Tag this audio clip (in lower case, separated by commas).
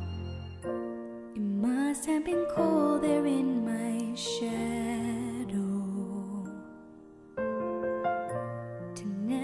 music